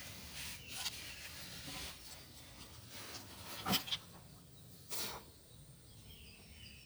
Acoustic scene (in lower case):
park